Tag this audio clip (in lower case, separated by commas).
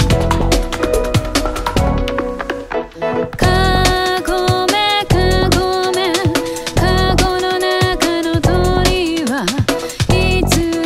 music, new-age music, exciting music